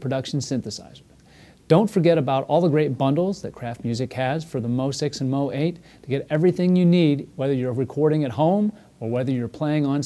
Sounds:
speech

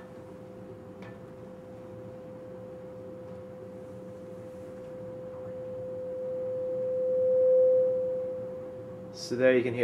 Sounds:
speech

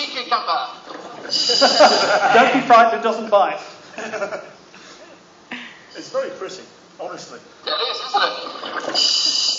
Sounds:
speech

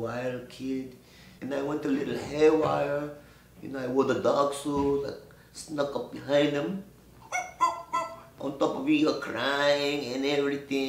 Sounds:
speech

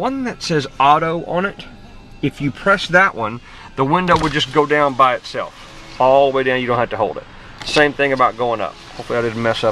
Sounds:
music
electric windows
speech

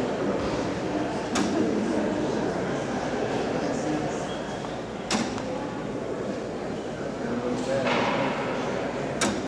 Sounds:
tick
speech

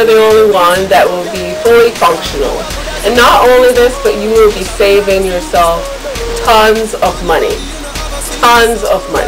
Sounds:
speech
music

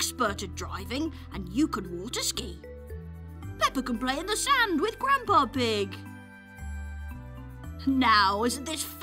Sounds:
music
speech

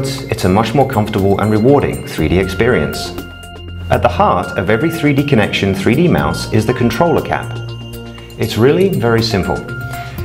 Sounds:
speech
music

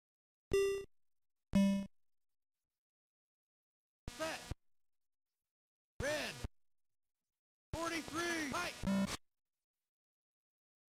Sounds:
sound effect

